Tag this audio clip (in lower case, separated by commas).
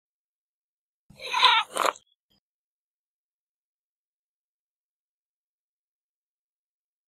domestic animals, cat, animal